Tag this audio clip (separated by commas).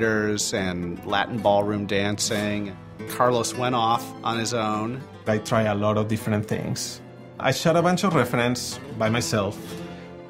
Music, Speech